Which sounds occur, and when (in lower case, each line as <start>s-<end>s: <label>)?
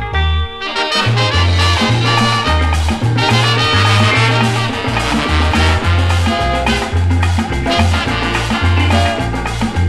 0.0s-9.8s: music